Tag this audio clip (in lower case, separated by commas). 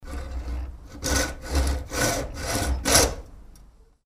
tools, sawing